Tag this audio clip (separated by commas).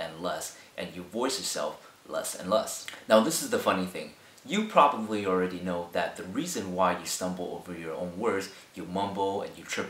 man speaking, Narration, Speech